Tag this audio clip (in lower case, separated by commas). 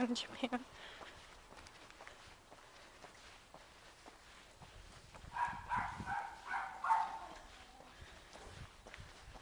speech, footsteps